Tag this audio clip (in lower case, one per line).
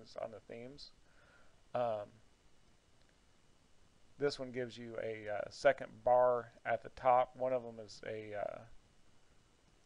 speech